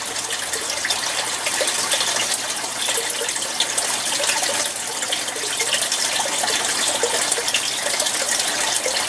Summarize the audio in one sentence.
Water is running and gurgling